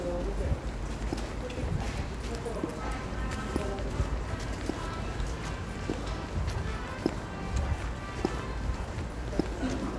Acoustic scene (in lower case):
subway station